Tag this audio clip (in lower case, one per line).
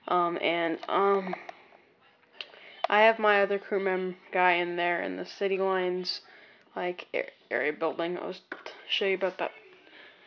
speech